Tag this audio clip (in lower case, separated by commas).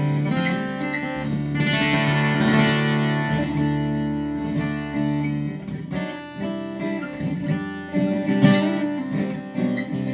plucked string instrument, music, guitar, electric guitar, strum, musical instrument